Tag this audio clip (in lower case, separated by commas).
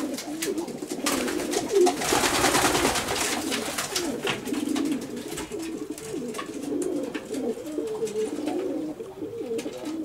bird, dove